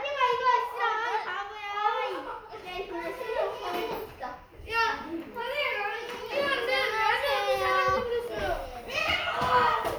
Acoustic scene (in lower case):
crowded indoor space